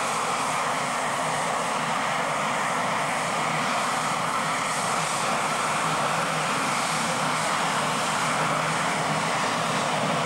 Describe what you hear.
An aircraft engine spins loudly nearby